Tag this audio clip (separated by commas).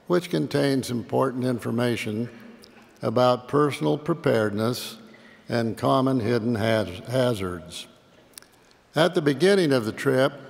Speech